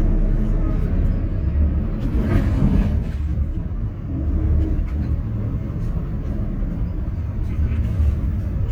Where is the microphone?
on a bus